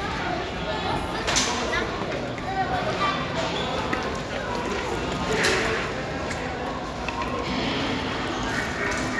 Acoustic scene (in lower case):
crowded indoor space